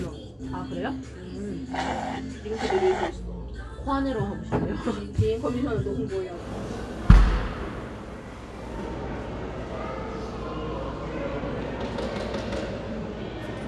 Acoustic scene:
cafe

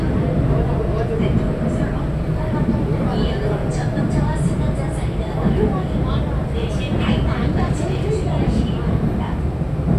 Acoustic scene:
subway train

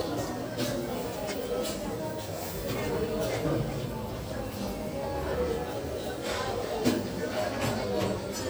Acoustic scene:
crowded indoor space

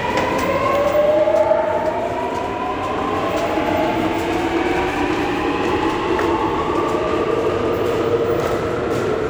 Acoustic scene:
subway station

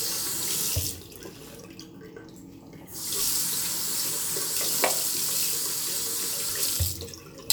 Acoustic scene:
restroom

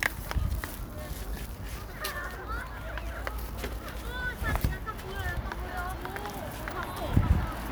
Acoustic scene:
residential area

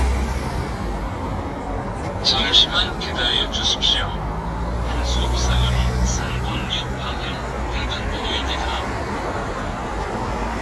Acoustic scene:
street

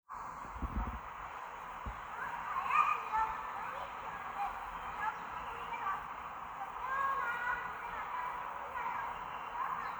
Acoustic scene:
park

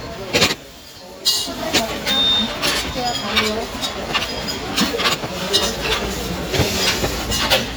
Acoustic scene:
restaurant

